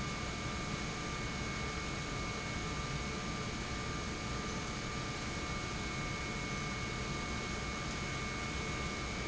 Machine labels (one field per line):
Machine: pump